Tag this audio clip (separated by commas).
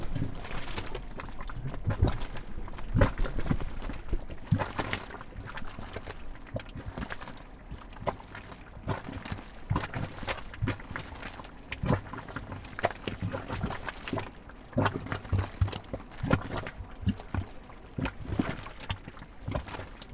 Boiling, Liquid